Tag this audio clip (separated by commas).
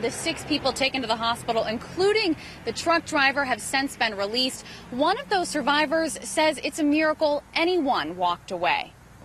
Vehicle, Car, Speech